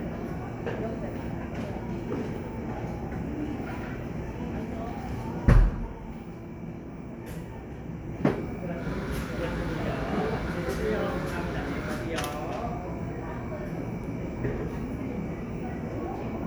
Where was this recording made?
in a cafe